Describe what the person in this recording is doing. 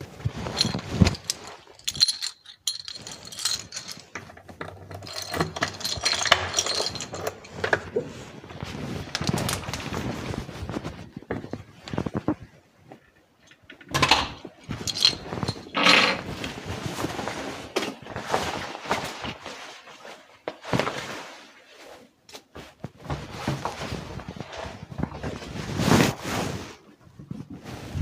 I opened the door with a key, walked through it and closed the door. I put down the keys, took off my jacket and shoes.